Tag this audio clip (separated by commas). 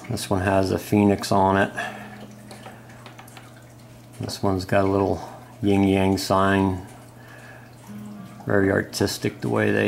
Speech, Music